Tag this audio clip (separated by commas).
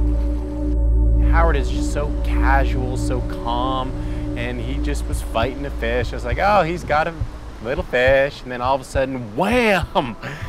Music, Speech